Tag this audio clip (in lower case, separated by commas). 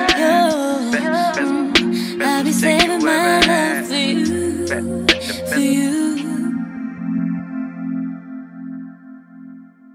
synthesizer, music